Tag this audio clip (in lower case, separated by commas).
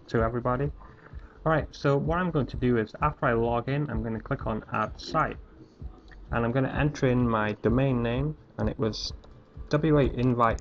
speech